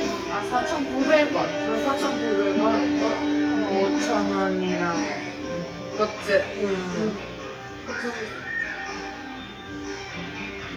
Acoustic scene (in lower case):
restaurant